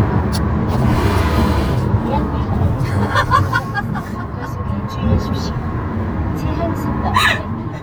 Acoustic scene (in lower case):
car